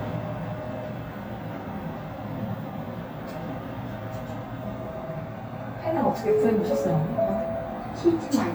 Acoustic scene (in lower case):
elevator